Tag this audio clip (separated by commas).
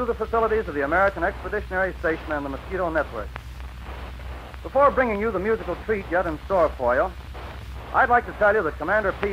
Speech